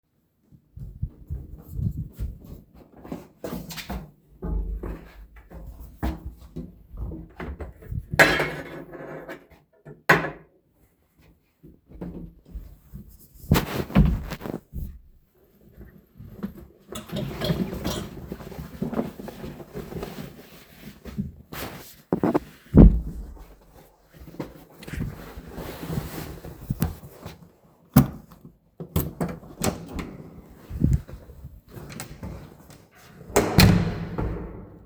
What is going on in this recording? I walked to the wardrobe, I took the shoespoon, and swiftly wore my whoes. After that, I wore a jacket, rustling with other clothes, and walked out of the aparatments, opening and closing the door without the keys.